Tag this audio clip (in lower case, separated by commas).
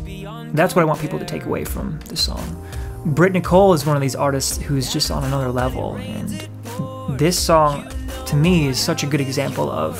music, speech